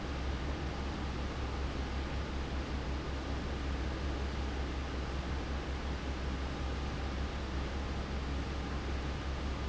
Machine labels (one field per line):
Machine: fan